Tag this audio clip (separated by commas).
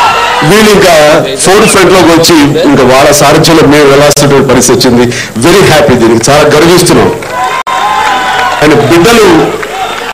Speech, Narration, man speaking